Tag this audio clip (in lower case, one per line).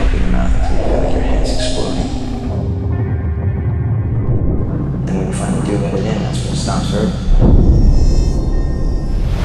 music
speech